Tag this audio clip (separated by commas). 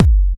Thump